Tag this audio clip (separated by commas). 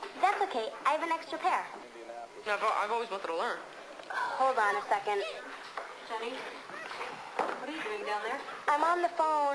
Speech